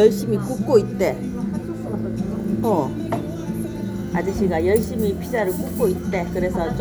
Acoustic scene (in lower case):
restaurant